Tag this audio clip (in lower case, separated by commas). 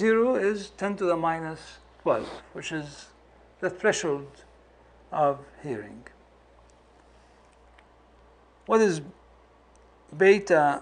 speech